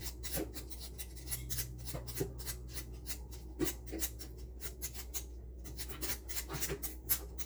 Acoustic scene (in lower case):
kitchen